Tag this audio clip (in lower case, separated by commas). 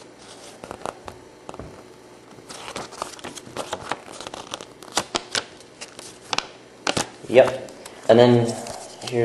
inside a small room, speech